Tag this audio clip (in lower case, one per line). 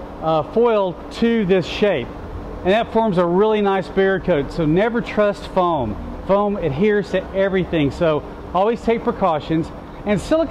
speech